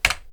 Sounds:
home sounds, typing, computer keyboard

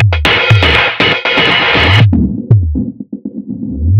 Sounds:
musical instrument, percussion, drum kit, music

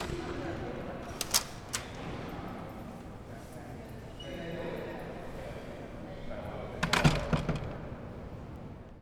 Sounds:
domestic sounds, slam, door

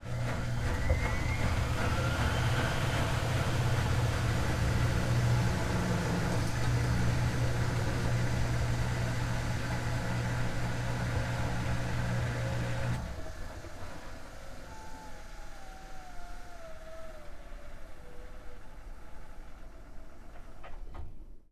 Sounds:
engine

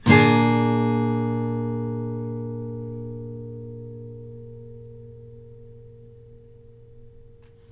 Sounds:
guitar, musical instrument, acoustic guitar, music, plucked string instrument

